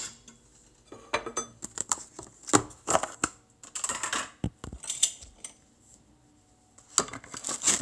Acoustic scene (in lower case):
kitchen